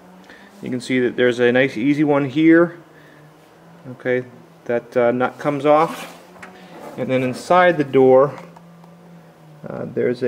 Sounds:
inside a large room or hall, vehicle, speech

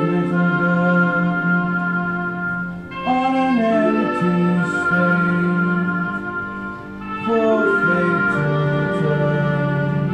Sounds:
sad music, music

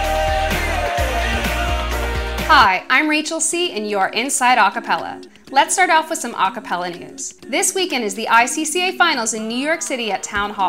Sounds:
speech, music

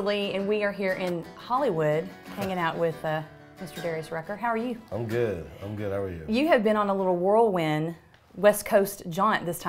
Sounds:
speech, background music, music

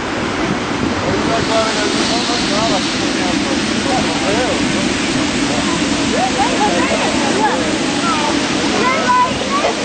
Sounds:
speech

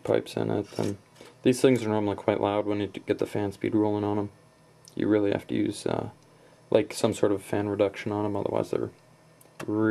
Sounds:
speech, inside a small room

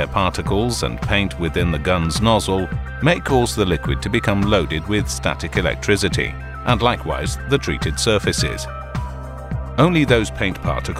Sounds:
speech, music

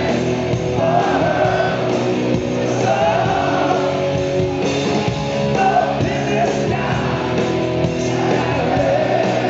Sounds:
music

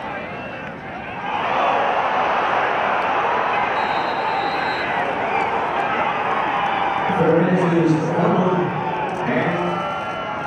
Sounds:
crowd, cheering

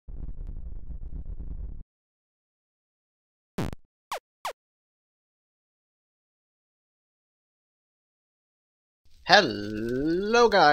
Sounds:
speech

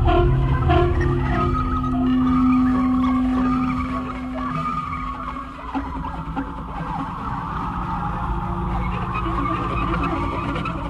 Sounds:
ambient music, electronic music, music

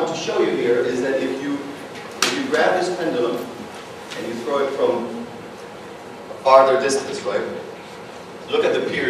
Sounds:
speech

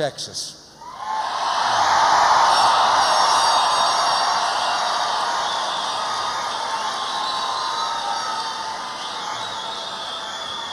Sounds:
speech, male speech

